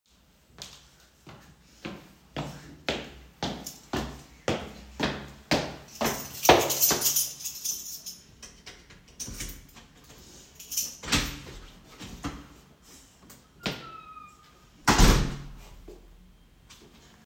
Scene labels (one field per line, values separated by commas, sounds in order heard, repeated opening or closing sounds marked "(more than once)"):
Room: hallway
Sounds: keys, footsteps, door (more than once)